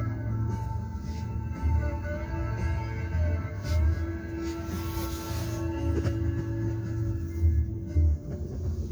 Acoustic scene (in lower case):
car